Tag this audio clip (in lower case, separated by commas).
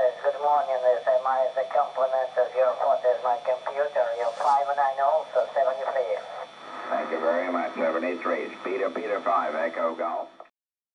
radio, speech